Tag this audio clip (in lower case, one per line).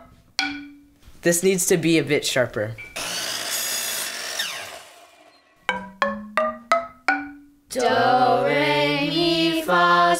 speech
xylophone
music